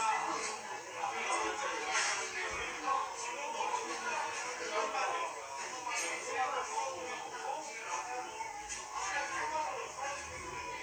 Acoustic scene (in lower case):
crowded indoor space